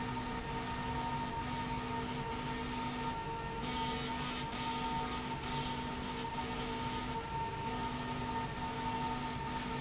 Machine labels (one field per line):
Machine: slide rail